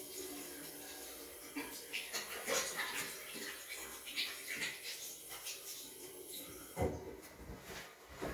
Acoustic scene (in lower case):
restroom